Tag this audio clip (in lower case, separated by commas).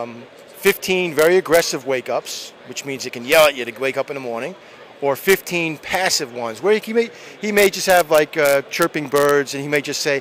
speech